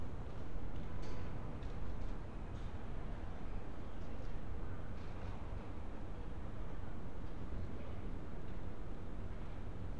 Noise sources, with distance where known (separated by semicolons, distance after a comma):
background noise